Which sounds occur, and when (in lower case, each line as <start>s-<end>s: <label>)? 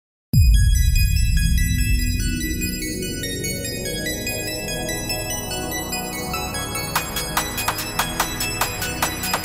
0.3s-9.4s: music